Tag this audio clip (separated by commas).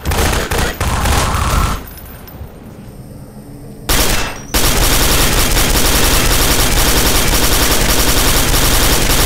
Fusillade